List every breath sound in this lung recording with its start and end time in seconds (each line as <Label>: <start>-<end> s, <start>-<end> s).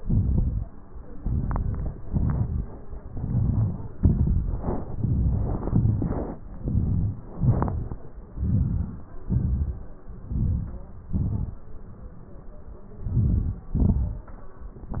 Inhalation: 1.21-1.94 s, 3.12-3.91 s, 5.00-5.66 s, 6.66-7.21 s, 8.46-9.09 s, 10.31-10.90 s, 13.28-13.65 s
Exhalation: 2.12-2.62 s, 4.09-4.64 s, 5.76-6.26 s, 7.44-7.94 s, 9.37-9.80 s, 11.18-11.49 s, 13.86-14.24 s